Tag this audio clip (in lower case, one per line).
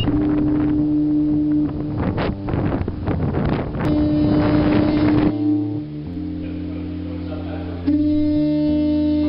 wind
water vehicle
wind noise (microphone)
ship